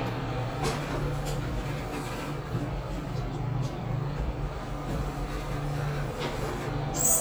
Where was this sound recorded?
in an elevator